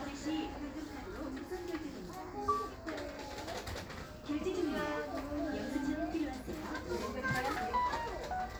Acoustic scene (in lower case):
crowded indoor space